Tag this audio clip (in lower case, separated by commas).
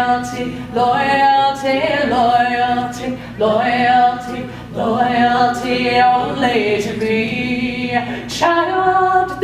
inside a large room or hall, singing